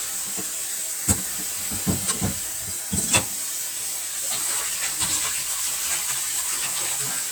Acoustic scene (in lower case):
kitchen